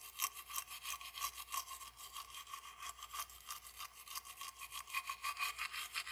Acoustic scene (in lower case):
restroom